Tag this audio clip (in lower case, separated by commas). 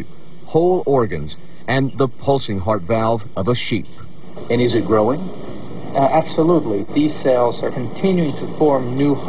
speech